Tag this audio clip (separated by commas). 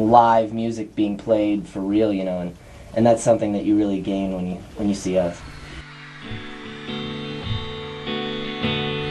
Speech, Music